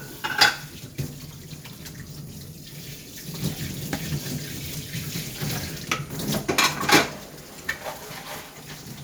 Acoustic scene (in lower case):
kitchen